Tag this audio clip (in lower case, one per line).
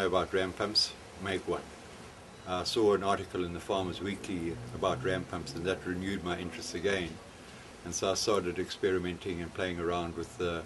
speech